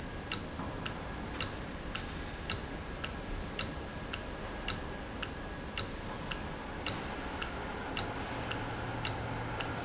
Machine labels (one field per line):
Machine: valve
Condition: normal